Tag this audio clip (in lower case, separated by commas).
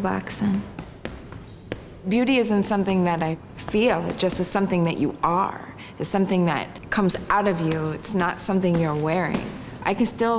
speech